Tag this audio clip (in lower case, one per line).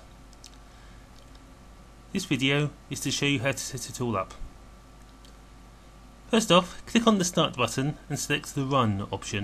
speech